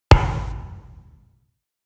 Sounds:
Thump

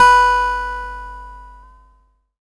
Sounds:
Plucked string instrument, Acoustic guitar, Guitar, Musical instrument, Music

